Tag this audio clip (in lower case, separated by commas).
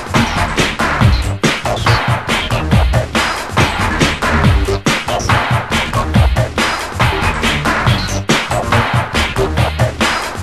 soundtrack music, music